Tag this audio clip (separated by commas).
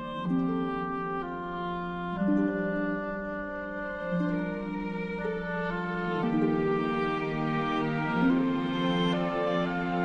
Music, Tender music